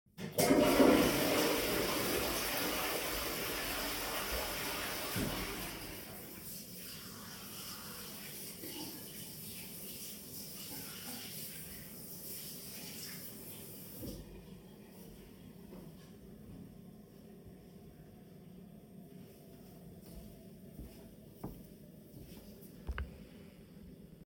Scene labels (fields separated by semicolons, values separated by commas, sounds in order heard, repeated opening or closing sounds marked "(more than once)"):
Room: bathroom; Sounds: toilet flushing, running water, footsteps